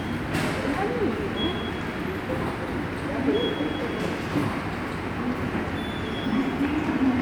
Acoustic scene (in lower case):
subway station